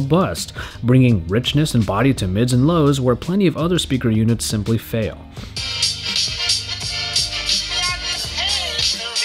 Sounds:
inside a small room, Speech, Music

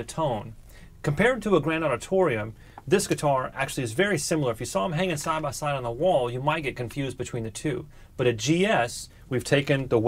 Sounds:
Speech

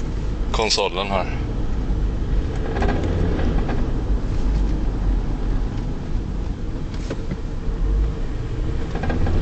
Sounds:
Vehicle, Speech

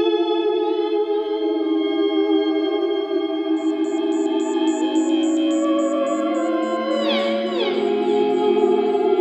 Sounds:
playing theremin

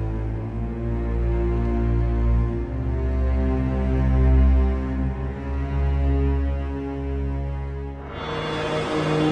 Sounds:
Lullaby, Music

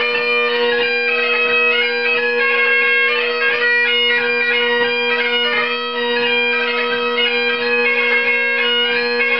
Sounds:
Musical instrument, Bagpipes, Music

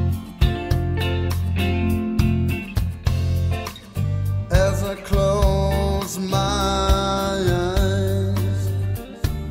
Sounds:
Music

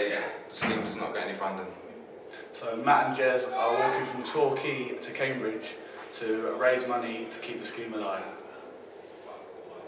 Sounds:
Speech

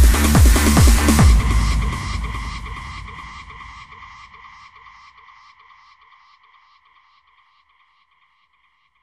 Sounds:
Music

